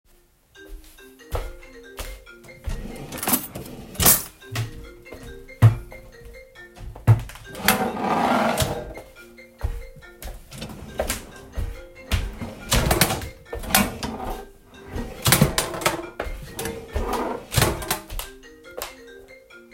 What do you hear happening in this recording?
This is a bonus scene with three overlapping sounds. While the phone was ringing on the nightstand, I walked around the room opening and closing drawers.